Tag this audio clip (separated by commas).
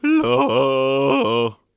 Singing, Human voice, Male singing